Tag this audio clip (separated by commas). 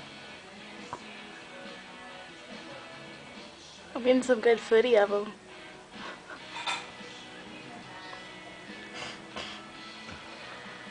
Music, Speech